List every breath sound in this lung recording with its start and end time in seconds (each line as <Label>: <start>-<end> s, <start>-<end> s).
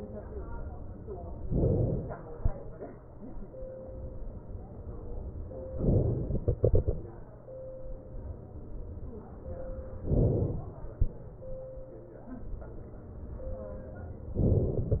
Inhalation: 1.50-2.40 s, 5.78-6.32 s, 10.02-11.12 s
Exhalation: 6.32-7.60 s